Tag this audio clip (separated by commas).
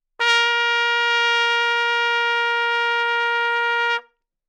Brass instrument, Music, Musical instrument, Trumpet